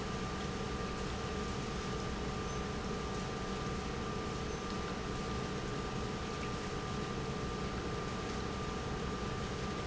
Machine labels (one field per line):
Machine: pump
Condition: normal